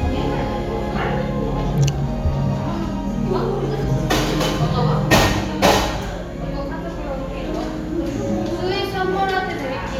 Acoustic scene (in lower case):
cafe